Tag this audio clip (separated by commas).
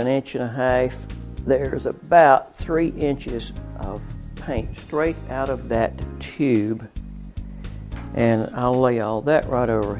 Music, Speech